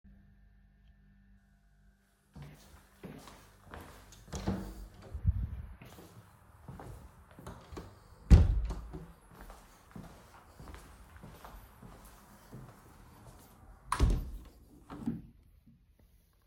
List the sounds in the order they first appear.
footsteps, door, window